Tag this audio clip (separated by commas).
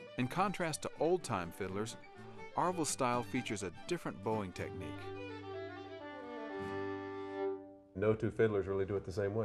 Violin, Musical instrument, Music, Speech